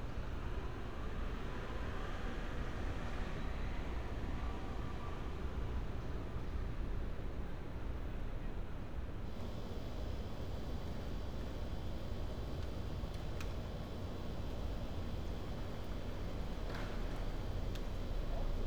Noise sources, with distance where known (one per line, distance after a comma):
background noise